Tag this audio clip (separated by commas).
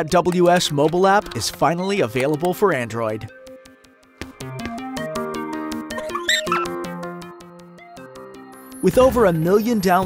Speech, Music